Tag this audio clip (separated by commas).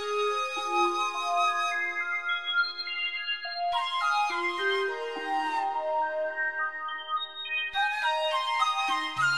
Music